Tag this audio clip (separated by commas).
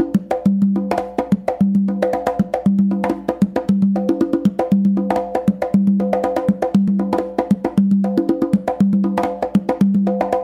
playing congas